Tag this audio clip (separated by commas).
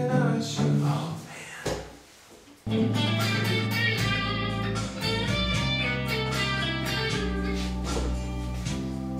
Acoustic guitar, Musical instrument, Plucked string instrument, Music, Electric guitar, Guitar